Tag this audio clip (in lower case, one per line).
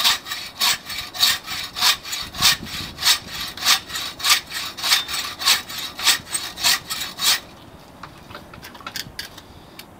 sawing
wood